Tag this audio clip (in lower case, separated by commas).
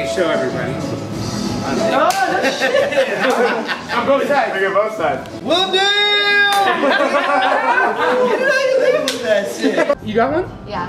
speech, music, clapping